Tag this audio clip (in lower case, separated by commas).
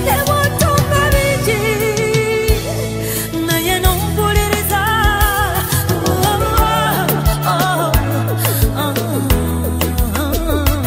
inside a small room, music